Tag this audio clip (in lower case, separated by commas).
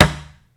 thump